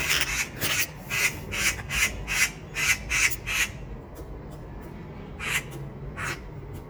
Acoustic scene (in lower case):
park